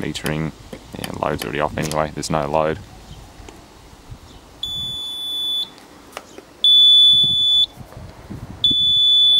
A man speaking with brief tapping in the background followed by high pitched beeping